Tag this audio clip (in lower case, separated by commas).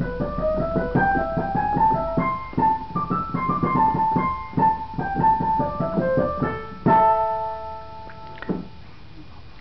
music, speech